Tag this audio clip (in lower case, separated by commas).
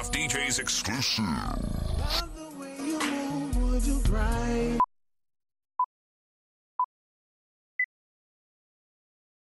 music, speech